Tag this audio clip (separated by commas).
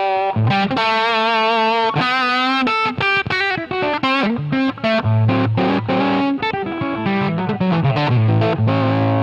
Acoustic guitar, Plucked string instrument, Guitar, Music, Bass guitar, Musical instrument